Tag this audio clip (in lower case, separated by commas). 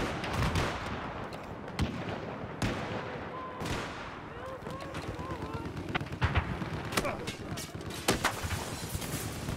speech, sound effect